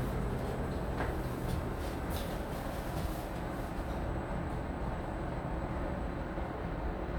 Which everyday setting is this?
elevator